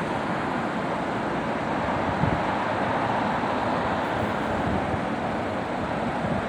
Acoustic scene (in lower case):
street